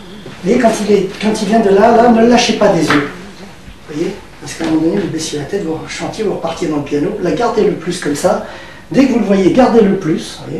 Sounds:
Speech

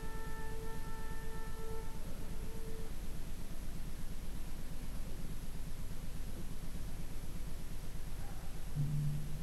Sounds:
Music, Musical instrument, fiddle

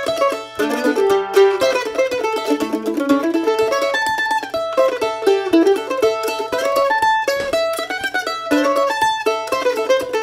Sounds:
Music, Musical instrument, playing banjo, Mandolin, Banjo

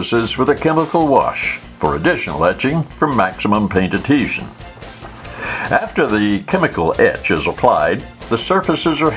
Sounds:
Music, Speech

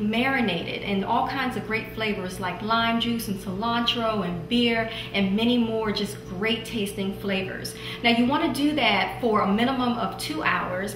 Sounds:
Speech

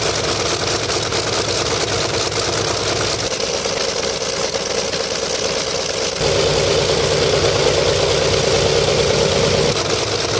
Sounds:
airscrew

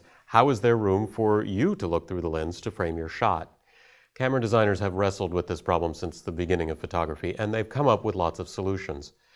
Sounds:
Speech

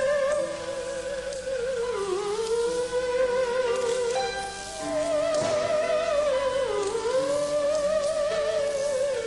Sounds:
playing theremin

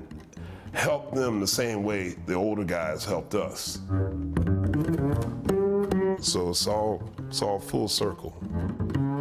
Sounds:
Double bass, Bowed string instrument, Cello, Pizzicato

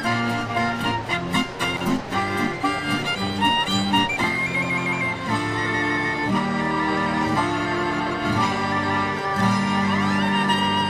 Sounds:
sailing ship, Music

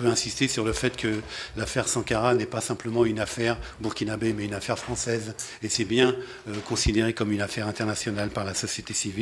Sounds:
Speech

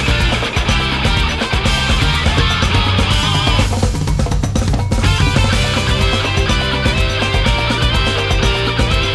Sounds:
Background music, Rimshot, Drum kit, Music, Drum

